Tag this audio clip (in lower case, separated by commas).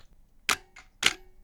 mechanisms, camera